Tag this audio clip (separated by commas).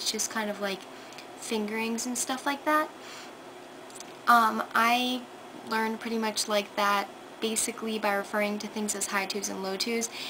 Speech